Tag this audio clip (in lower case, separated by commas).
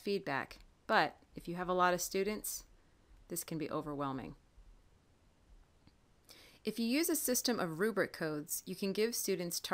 speech